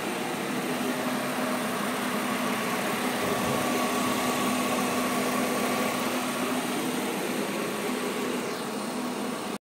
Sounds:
Engine, Medium engine (mid frequency), Vehicle, Idling

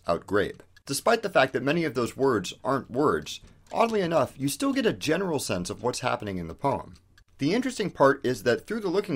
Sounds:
Speech

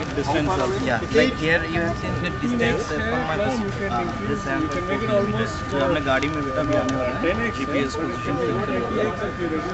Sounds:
Speech

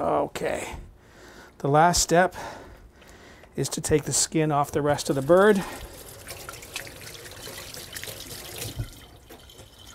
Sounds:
Speech, faucet, inside a small room

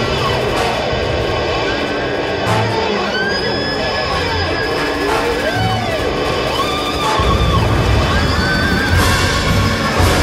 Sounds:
Music

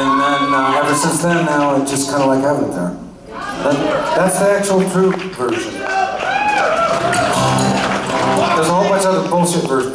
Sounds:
Applause, Male speech

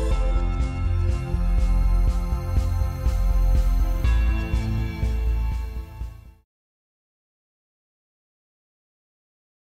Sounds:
Music, Background music

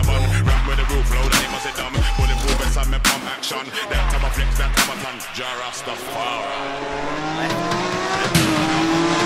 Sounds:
Motor vehicle (road), Music, Dubstep, Car

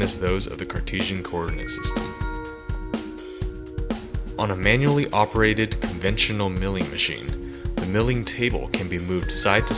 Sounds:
Speech, Music

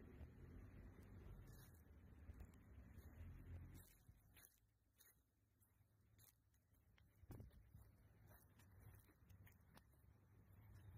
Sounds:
Chewing, outside, rural or natural

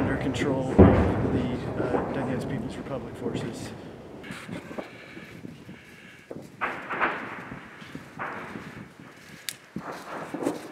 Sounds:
Speech

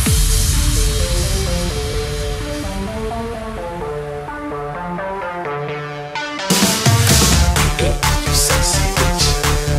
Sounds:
Music, Electronic dance music

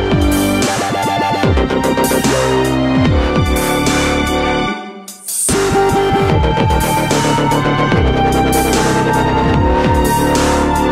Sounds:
fiddle, Music, Musical instrument

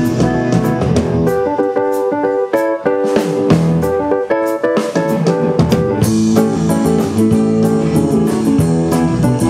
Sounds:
Plucked string instrument, Guitar, Music, Musical instrument, Strum

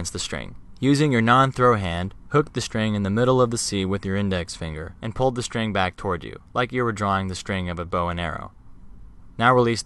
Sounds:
Speech

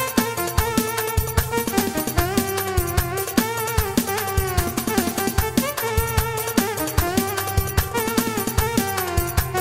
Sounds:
Music, Musical instrument

